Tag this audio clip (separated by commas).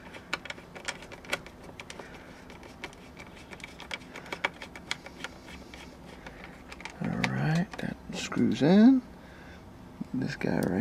Speech